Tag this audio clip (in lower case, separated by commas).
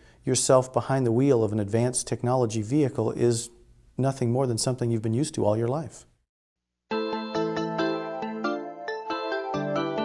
music, speech